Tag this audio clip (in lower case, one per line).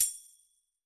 tambourine
musical instrument
percussion
music